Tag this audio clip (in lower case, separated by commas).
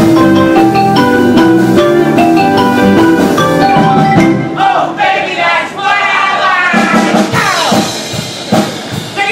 drum, music, drum kit, xylophone, musical instrument